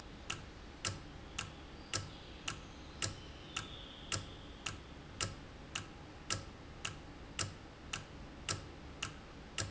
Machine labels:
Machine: valve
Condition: normal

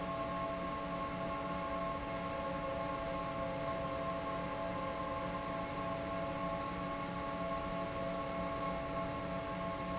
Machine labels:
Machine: fan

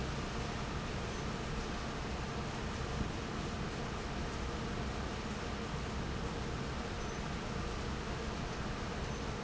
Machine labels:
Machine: fan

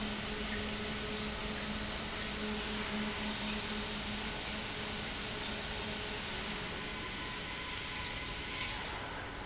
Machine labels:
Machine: pump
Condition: normal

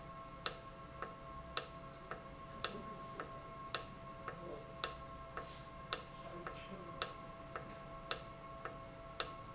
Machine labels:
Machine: valve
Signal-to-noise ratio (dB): 6 dB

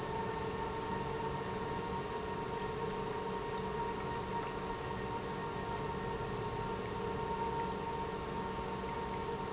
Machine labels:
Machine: pump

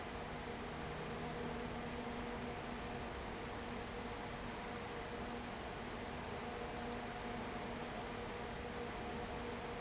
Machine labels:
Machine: fan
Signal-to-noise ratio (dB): 6 dB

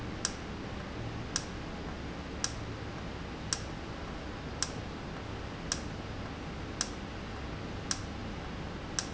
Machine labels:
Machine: valve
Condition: normal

